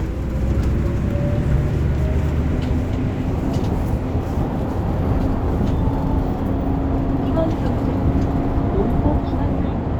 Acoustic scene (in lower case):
bus